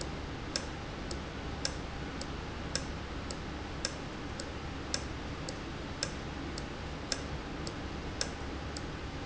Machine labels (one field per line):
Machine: valve